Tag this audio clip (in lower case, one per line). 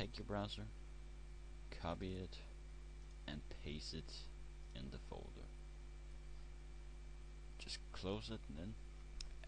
speech